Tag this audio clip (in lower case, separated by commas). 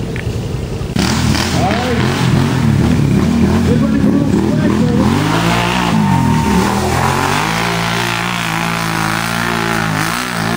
speech